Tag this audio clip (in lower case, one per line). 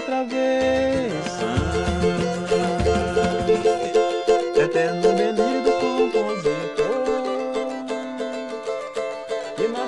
playing mandolin